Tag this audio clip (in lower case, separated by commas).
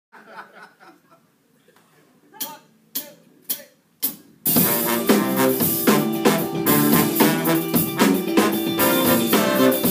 speech, music, laughter